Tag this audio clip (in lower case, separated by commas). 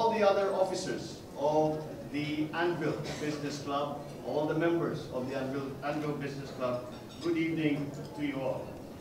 speech, man speaking, monologue